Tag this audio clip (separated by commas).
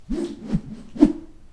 Whoosh